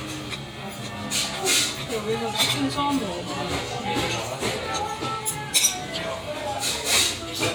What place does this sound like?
restaurant